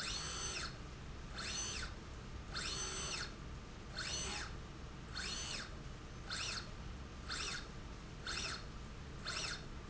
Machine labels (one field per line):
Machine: slide rail